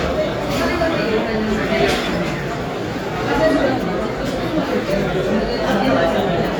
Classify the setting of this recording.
crowded indoor space